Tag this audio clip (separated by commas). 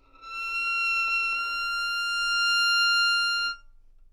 Musical instrument, Bowed string instrument, Music